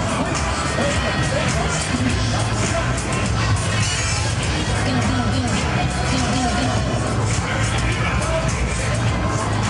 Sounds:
Speech, Music

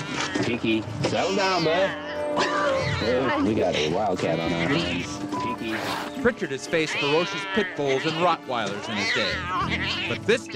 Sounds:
Music, Speech

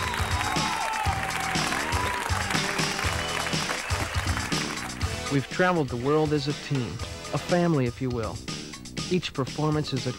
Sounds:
Speech, Music

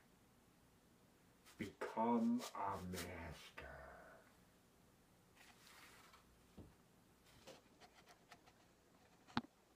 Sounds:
Speech

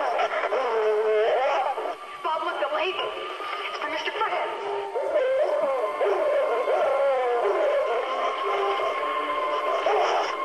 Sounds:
Bow-wow, Speech, Music

